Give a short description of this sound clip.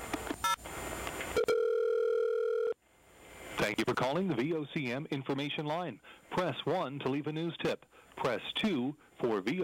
A phone dial tone is followed by an automatic machine answering